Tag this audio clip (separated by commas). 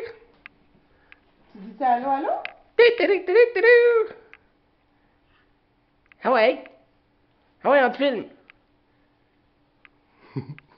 Speech, Bird